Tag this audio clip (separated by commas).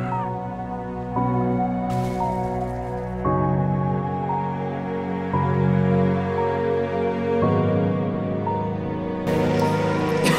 Music, Sad music